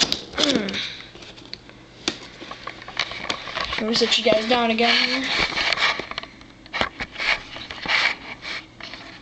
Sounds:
Speech

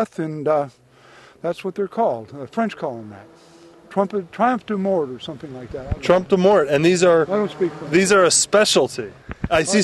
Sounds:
outside, rural or natural, Speech

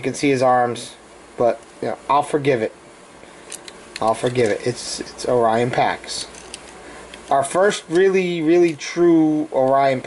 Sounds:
Speech

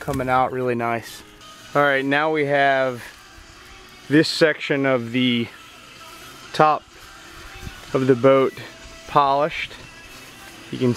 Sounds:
Speech, Music

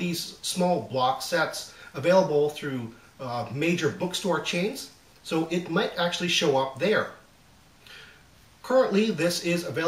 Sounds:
Speech

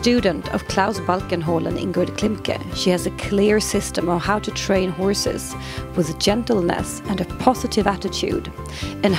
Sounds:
Speech, Music

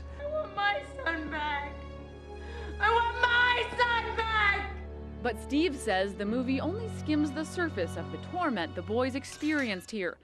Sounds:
Music, Speech

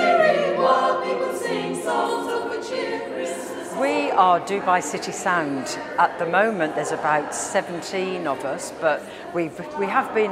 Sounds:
Music, Choir, Speech

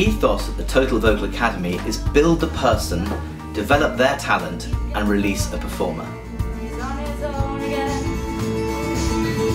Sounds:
Music, inside a small room, Synthetic singing, Speech, Singing

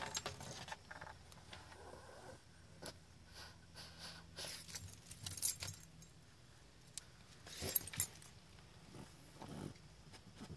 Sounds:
Dog, Animal, pets

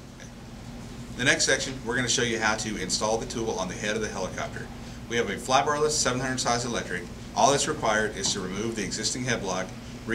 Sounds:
Speech

